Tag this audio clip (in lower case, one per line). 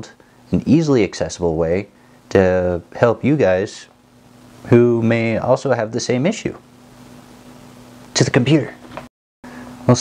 speech
inside a small room